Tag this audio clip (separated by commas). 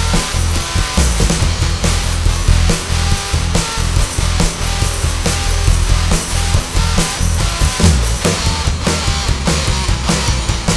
Music